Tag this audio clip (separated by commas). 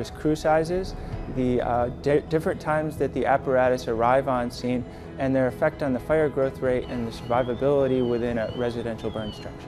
Music, Fire engine, Speech